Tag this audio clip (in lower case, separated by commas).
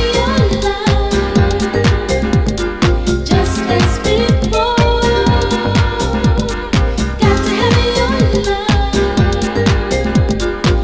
music, electronic music, disco